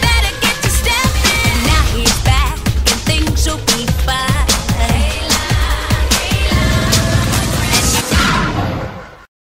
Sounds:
Exciting music, Music

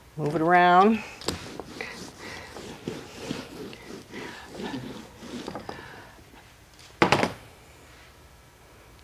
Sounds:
Speech, inside a small room

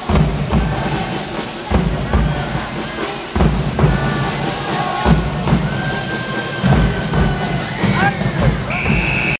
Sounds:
Speech, Music

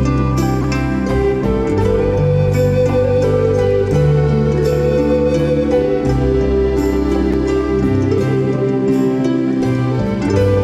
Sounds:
Bowed string instrument, Violin, Pizzicato, Harp

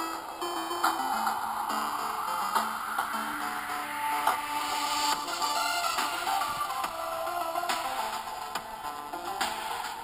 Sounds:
Electronic music, Music

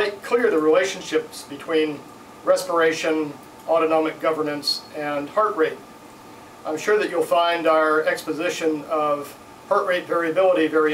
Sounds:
Speech

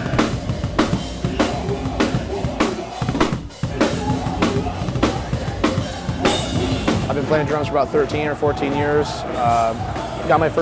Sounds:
Music, Speech

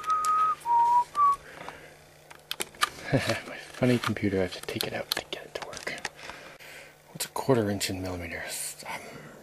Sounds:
Speech

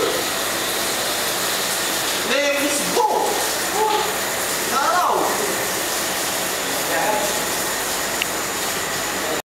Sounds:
Speech

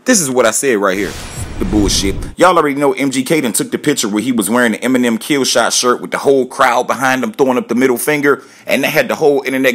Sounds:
people booing

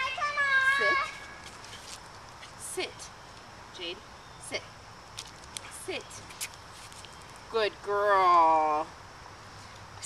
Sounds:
Speech

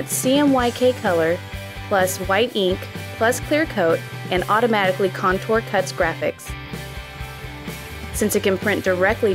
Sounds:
Music, Speech

